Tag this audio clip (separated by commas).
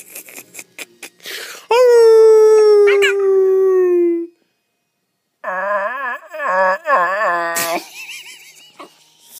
Dog, Yip, Domestic animals